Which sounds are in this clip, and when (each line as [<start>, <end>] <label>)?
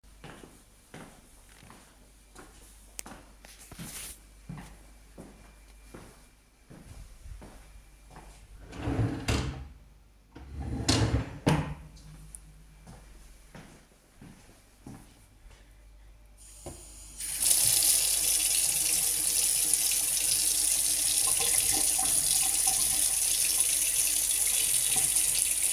[0.33, 8.33] footsteps
[8.66, 11.85] wardrobe or drawer
[12.85, 15.74] footsteps
[16.37, 25.73] running water